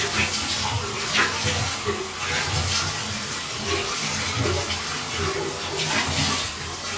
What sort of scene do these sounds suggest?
restroom